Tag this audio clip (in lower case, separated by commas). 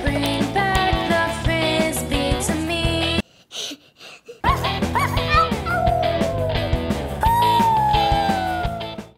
musical instrument, speech, strum, guitar, acoustic guitar, music